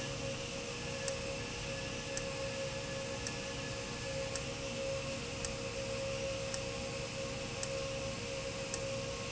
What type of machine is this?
valve